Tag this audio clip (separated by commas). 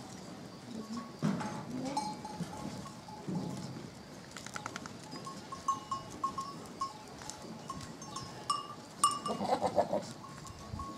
pets, livestock, Animal, Goat